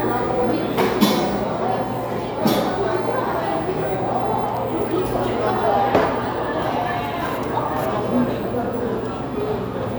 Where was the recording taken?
in a cafe